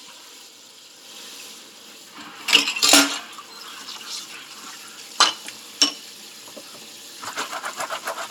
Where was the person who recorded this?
in a kitchen